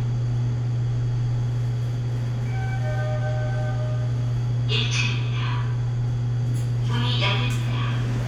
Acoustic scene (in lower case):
elevator